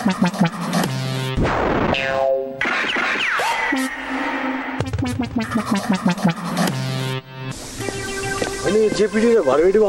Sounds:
speech, music, outside, urban or man-made

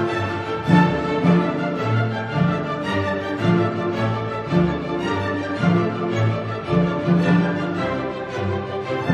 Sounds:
music

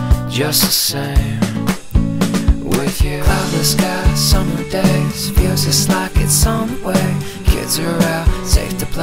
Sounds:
inside a large room or hall, music

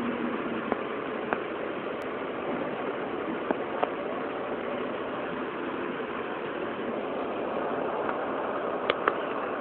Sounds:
vehicle

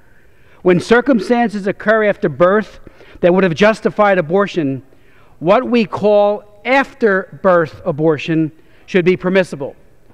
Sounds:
man speaking, speech, narration

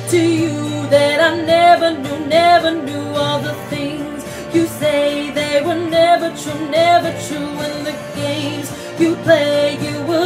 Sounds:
music, inside a small room

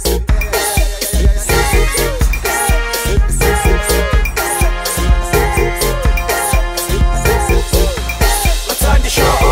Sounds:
music

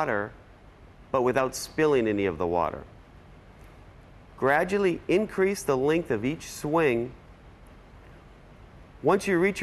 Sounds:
speech

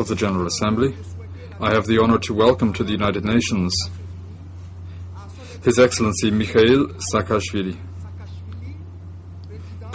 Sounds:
speech, monologue, man speaking

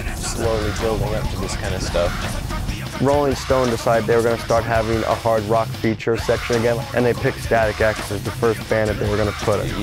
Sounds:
music, speech

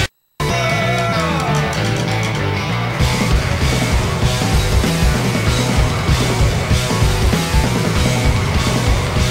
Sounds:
rock music, music

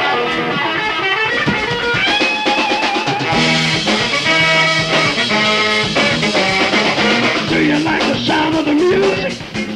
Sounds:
music

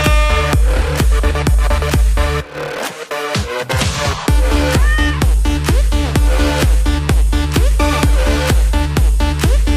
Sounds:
domestic animals, music, cat, animal, meow

